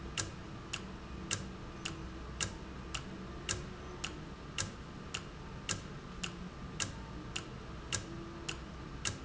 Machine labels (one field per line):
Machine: valve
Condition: normal